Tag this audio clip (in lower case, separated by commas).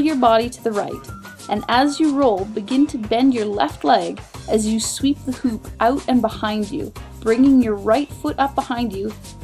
music, speech